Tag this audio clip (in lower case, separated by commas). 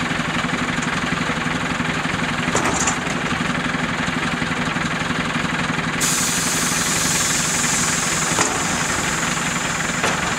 truck, vehicle